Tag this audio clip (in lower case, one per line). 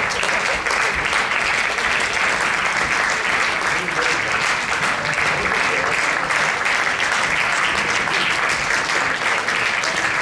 people clapping
speech
applause